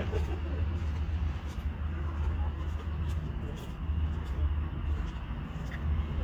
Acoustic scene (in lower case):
park